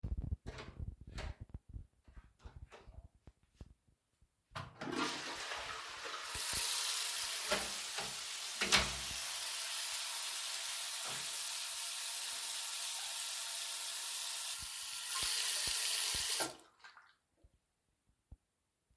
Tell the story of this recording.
I was in a rush so I opened the toilet door, flushed the toilet and quickly went over to the sink to wash my hands, and immeditely got out of the room